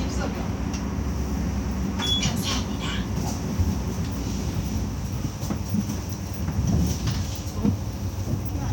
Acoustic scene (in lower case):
bus